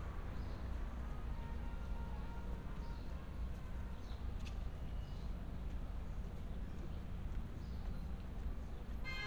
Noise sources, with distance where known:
car horn
music from an unclear source, far

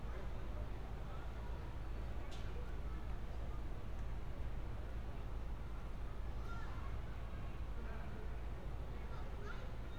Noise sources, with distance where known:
person or small group talking, far

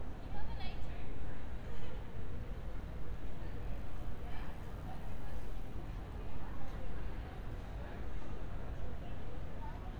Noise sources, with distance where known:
person or small group talking, near

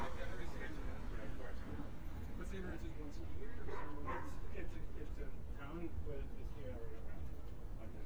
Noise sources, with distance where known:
background noise

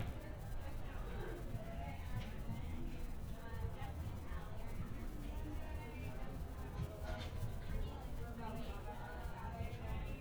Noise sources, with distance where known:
person or small group talking

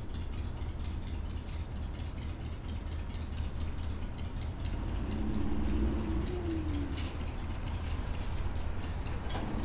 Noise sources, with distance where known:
large-sounding engine, far
unidentified impact machinery

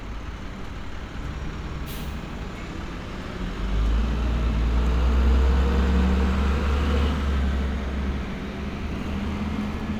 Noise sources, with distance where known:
large-sounding engine, near

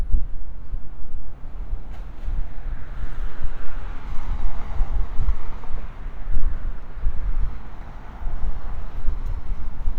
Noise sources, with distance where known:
medium-sounding engine, far

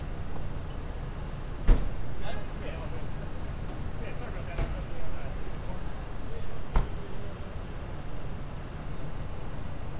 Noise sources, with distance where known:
non-machinery impact
person or small group talking

